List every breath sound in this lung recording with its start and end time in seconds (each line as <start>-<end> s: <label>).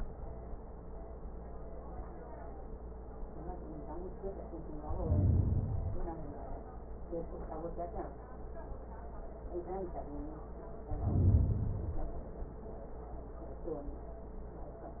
4.76-6.26 s: inhalation
10.87-12.37 s: inhalation